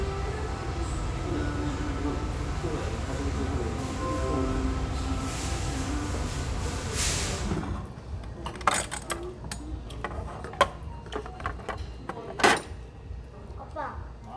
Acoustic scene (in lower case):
restaurant